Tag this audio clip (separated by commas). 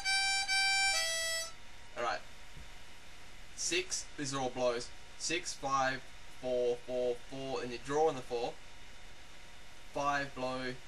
Music, Speech